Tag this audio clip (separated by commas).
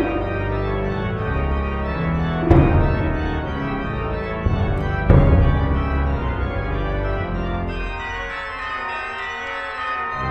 Marimba